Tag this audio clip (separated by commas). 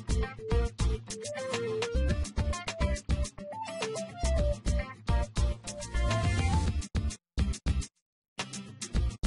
Music